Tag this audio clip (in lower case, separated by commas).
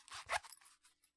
home sounds, zipper (clothing)